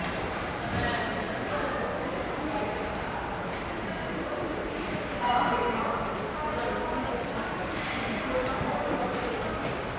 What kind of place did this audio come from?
subway station